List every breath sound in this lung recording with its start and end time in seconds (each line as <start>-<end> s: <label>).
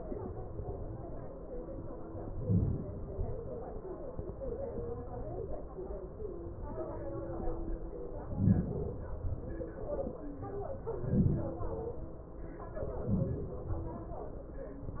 2.07-2.81 s: inhalation
2.83-3.25 s: exhalation
8.08-8.80 s: inhalation
8.79-9.28 s: exhalation
10.64-11.46 s: inhalation
11.50-12.16 s: exhalation
12.64-13.45 s: inhalation
13.47-14.16 s: exhalation